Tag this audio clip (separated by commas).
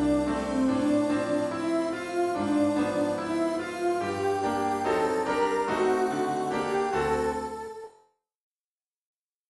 Music